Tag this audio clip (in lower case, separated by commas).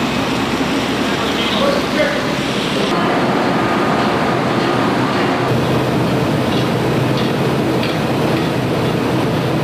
speech